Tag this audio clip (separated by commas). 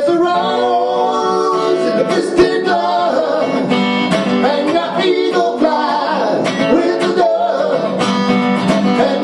Plucked string instrument, Acoustic guitar, Musical instrument, Male singing, Guitar, Singing, Music